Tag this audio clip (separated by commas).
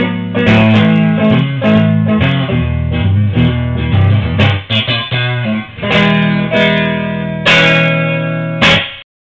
Plucked string instrument, Music, Guitar, Musical instrument, Strum